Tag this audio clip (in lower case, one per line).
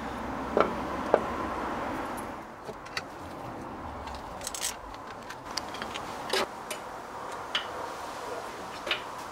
tick-tock